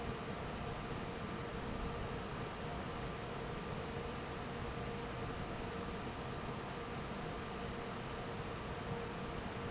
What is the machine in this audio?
fan